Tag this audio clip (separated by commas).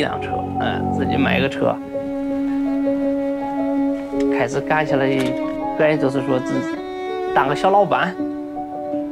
Music, Speech